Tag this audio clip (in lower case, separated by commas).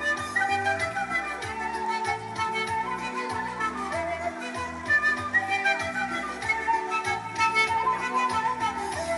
music, traditional music